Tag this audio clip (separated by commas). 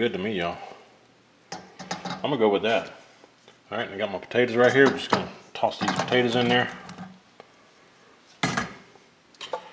Speech, inside a small room